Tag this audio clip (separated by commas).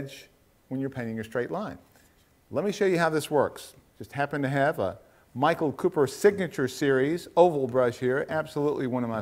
Speech